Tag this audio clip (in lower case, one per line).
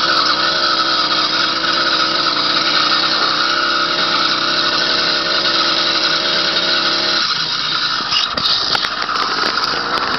vehicle
engine
accelerating